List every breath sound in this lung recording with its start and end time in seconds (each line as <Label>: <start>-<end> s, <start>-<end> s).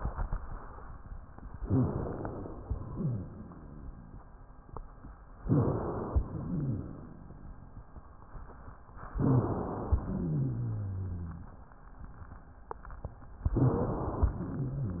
Inhalation: 1.61-2.58 s, 5.44-6.22 s, 9.19-10.04 s, 13.54-14.36 s
Exhalation: 2.58-4.36 s, 6.22-7.79 s, 10.03-11.60 s
Wheeze: 2.98-3.25 s, 6.47-6.80 s, 10.06-11.47 s
Crackles: 1.58-2.57 s